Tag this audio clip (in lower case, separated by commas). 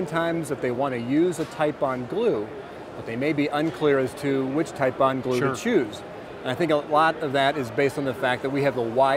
speech